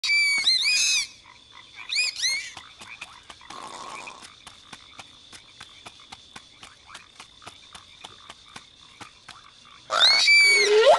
High pitched screeching followed by rustling and some croaking